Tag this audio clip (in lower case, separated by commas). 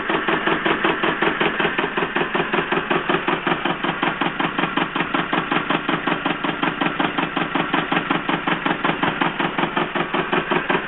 engine, medium engine (mid frequency)